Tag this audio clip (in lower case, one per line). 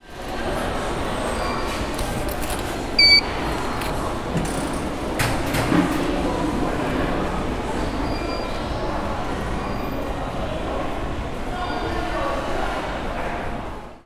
alarm